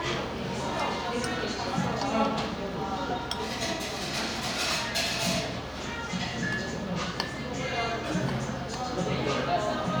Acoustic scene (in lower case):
cafe